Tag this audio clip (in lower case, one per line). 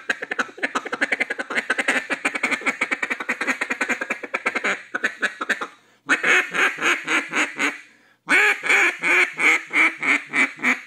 quack